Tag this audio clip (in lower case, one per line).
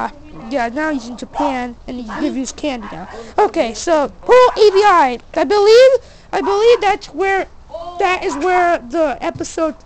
speech